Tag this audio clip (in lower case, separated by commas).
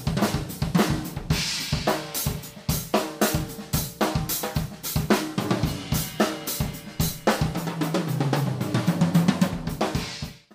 hi-hat, drum, drum kit, musical instrument, cymbal, music, bass drum, snare drum